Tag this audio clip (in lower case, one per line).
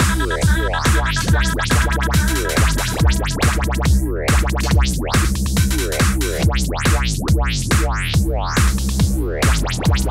music